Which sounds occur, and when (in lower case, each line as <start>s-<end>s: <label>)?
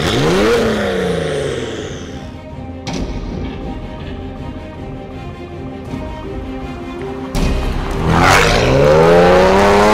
0.0s-2.3s: accelerating
0.0s-2.4s: car
0.0s-9.9s: music
7.4s-9.9s: car
8.1s-9.9s: accelerating